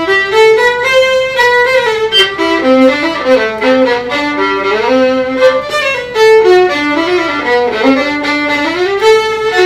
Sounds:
Musical instrument, Violin, Music

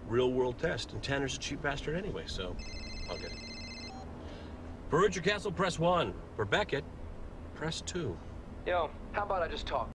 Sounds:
Vehicle, Speech

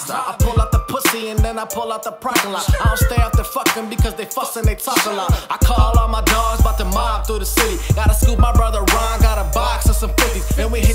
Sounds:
Music

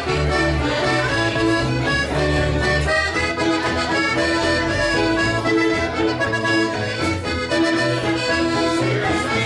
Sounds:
Music

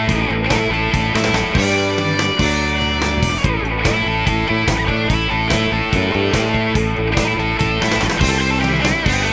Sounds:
Music

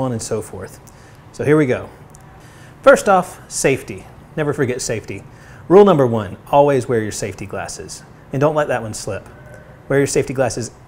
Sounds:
Speech

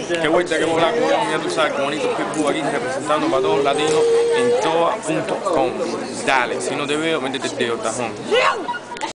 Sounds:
Speech

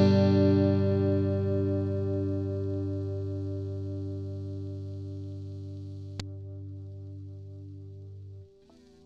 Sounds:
Electric guitar, Strum, Music

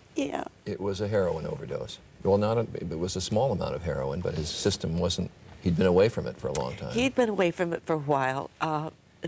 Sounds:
Speech

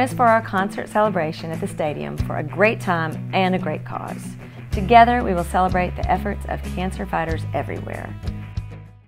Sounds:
Music, Speech

